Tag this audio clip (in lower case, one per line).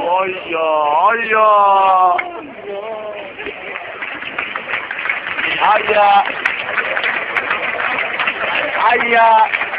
speech
outside, urban or man-made